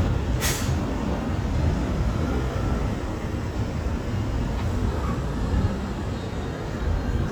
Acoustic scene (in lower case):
street